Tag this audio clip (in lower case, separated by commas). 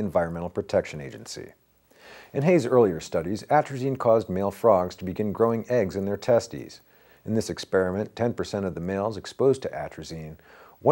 speech